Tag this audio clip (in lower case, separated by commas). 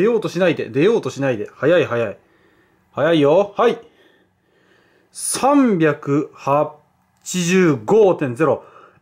speech, inside a small room